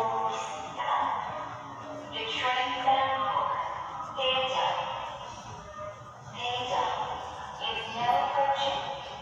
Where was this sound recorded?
in a subway station